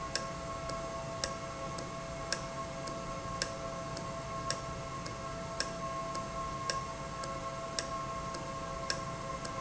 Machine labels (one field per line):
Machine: valve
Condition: normal